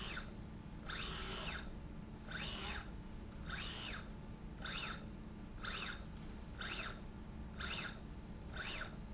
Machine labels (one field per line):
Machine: slide rail